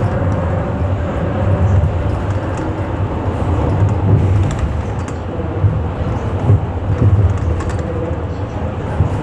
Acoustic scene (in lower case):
bus